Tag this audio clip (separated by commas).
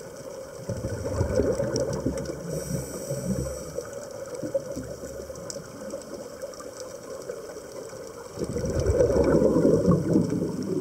scuba diving